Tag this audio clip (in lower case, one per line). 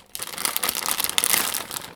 crackle